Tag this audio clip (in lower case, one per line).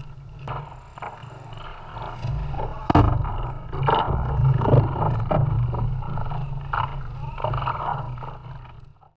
vehicle